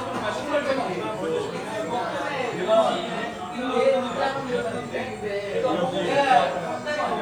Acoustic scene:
crowded indoor space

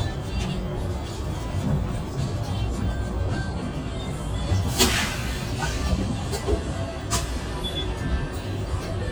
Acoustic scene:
bus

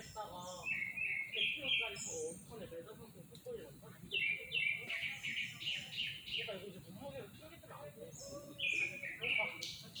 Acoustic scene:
park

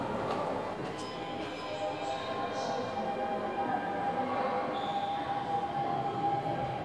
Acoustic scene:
subway station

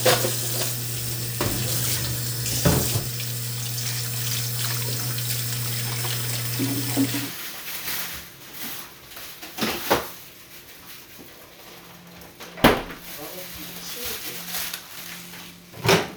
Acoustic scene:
kitchen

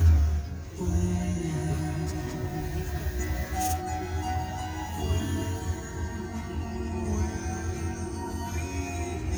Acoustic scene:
car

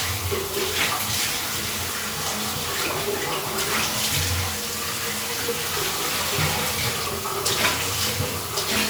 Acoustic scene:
restroom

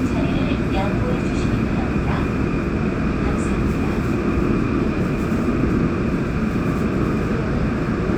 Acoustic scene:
subway train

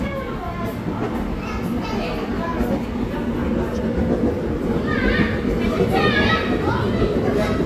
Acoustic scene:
subway station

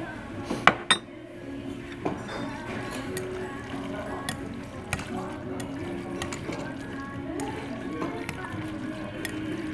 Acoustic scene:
restaurant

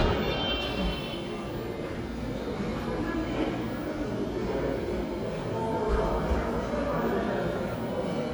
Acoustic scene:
cafe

